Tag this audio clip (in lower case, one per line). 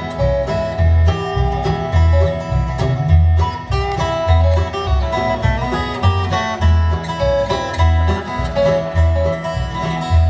musical instrument
music
bowed string instrument
country